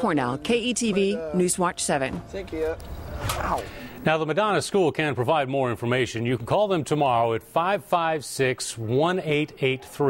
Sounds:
inside a small room, speech

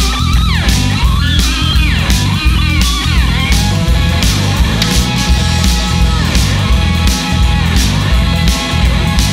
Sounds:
psychedelic rock, musical instrument, music, guitar, plucked string instrument

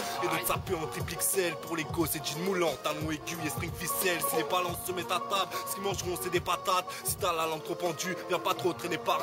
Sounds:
music

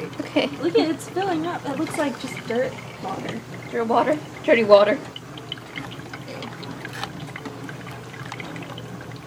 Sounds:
trickle

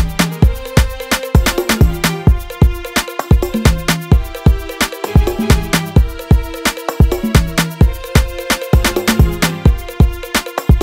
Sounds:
musical instrument, electronic music, house music, music, funk, drum

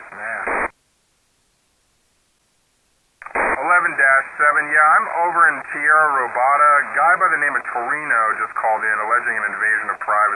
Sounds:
police radio chatter

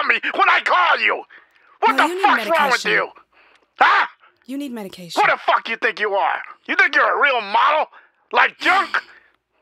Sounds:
speech

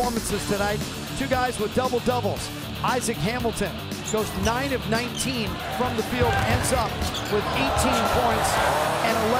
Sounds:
basketball bounce

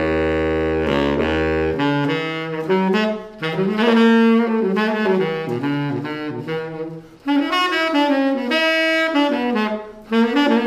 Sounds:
wind instrument

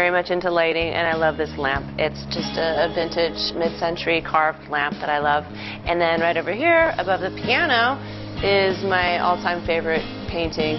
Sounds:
music, speech

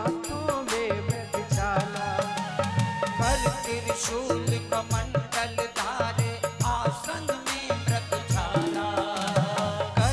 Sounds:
music

